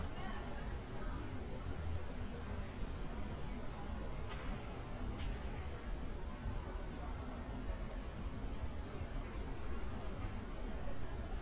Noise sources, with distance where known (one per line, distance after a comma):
person or small group talking, far